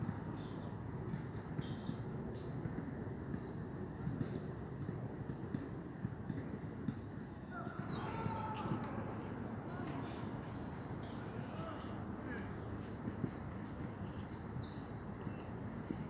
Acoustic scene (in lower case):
park